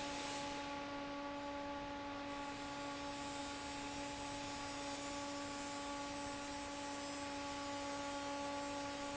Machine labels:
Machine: fan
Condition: normal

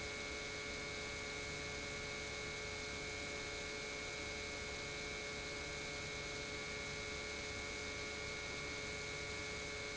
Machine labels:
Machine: pump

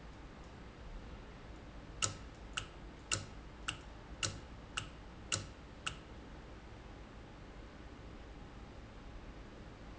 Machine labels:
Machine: valve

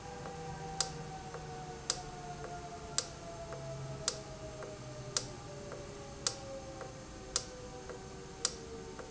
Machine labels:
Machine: valve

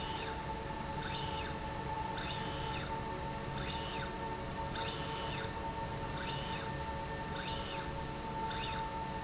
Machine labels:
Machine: slide rail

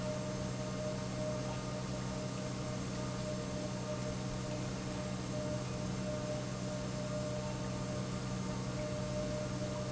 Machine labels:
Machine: pump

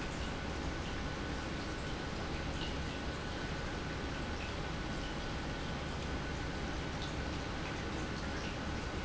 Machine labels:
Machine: pump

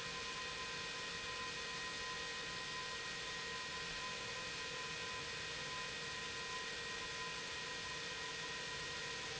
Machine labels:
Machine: pump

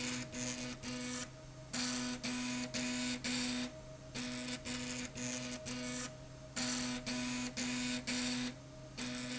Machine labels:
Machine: slide rail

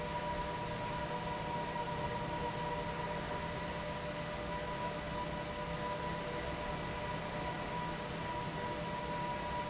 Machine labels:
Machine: fan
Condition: abnormal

